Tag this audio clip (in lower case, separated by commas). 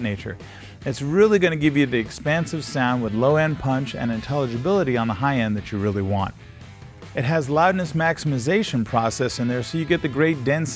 music, speech